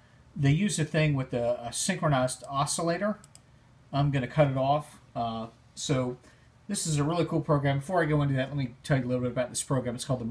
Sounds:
Speech

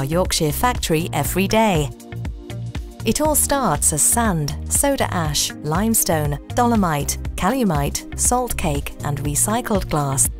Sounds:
Music, Speech

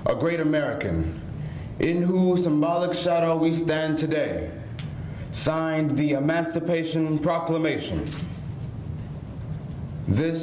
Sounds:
man speaking, Speech

